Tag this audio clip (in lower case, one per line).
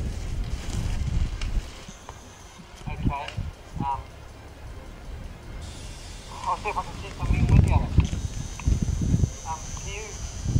music
speech